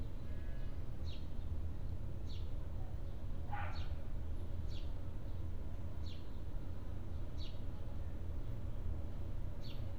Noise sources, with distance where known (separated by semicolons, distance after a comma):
background noise